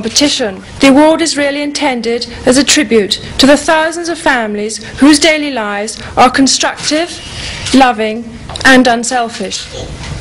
Woman giving speech